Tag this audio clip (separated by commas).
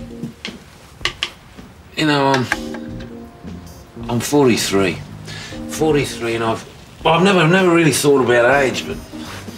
Speech, Music